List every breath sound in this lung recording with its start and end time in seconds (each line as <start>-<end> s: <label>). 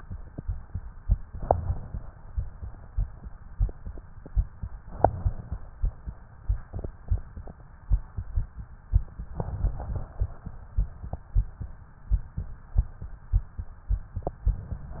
1.25-2.01 s: inhalation
4.82-5.71 s: inhalation
9.39-10.57 s: inhalation
14.84-15.00 s: inhalation